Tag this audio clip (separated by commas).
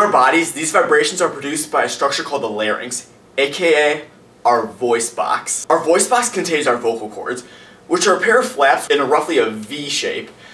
Speech